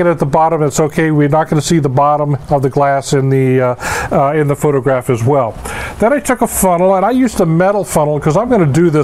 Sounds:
speech

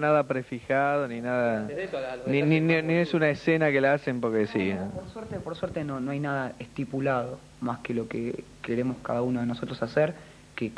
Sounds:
speech

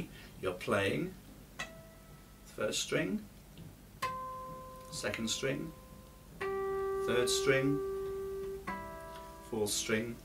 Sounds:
plucked string instrument, speech, acoustic guitar, guitar, music, musical instrument

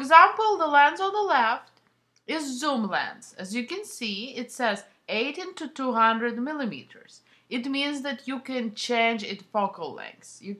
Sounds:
speech

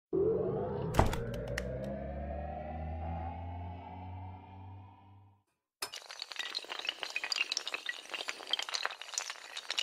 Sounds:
music

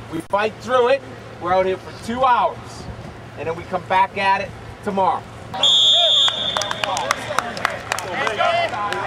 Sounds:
speech

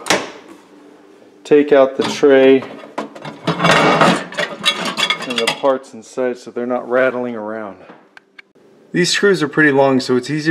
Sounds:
speech

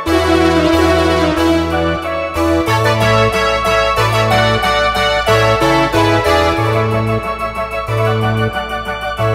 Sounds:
music

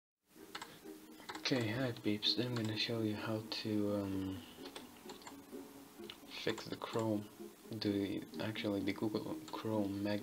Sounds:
speech, inside a small room

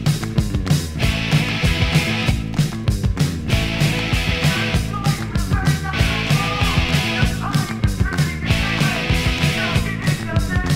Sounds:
music, psychedelic rock, punk rock

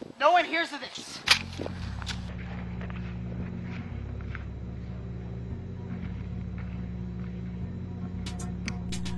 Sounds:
speech, music

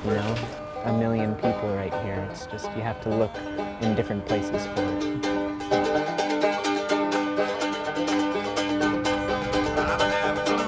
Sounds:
speech, music

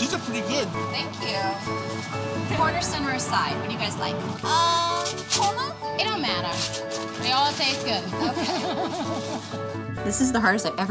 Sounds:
speech, vehicle, music, truck

